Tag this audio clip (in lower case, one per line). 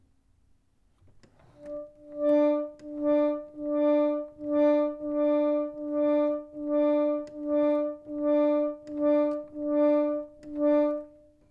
musical instrument
organ
music
keyboard (musical)